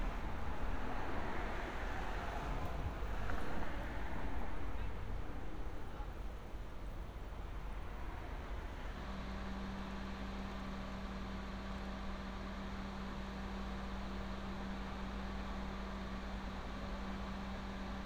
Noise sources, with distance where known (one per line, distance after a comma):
engine of unclear size